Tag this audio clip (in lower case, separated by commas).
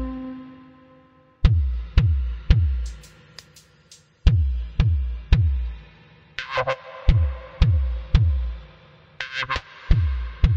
music, vibration